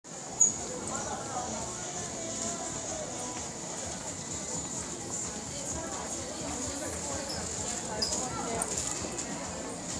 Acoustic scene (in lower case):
crowded indoor space